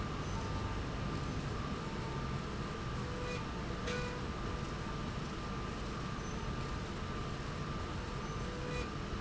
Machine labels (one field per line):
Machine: slide rail